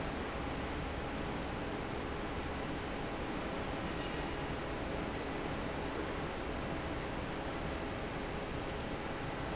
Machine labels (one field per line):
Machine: fan